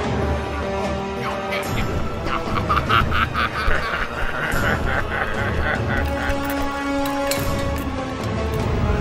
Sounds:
music, speech

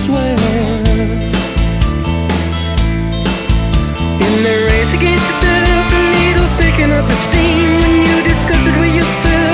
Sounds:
music

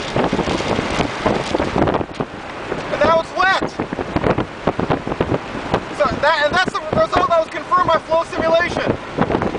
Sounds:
speech

